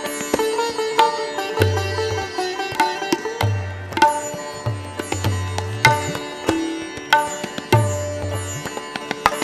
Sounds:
tabla, percussion

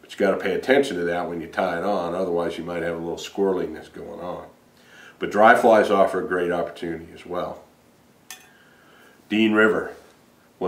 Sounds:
speech

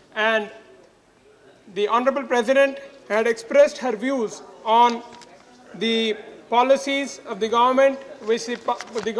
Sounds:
man speaking, narration, speech

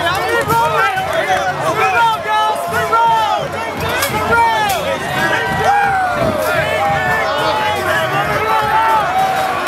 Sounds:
speech

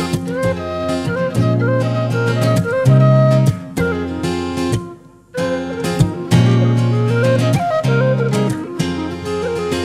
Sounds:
music

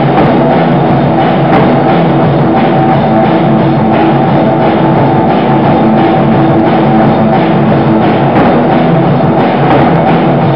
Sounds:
rock music, punk rock, music

